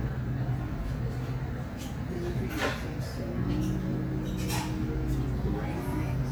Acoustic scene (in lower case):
cafe